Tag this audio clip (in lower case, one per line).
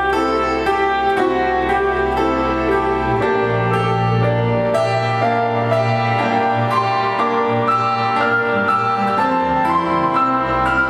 piano
music